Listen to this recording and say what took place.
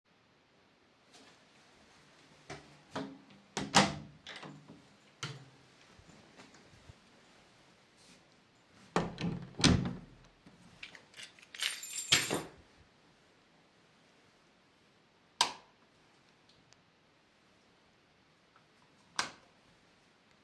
The person walks to the door in the living room and opens it. After entering, the person takes a few steps inside the room. The person throws the keychain onto his bed and then turns the light switch on and off.